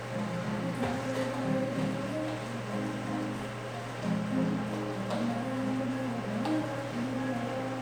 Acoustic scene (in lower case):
cafe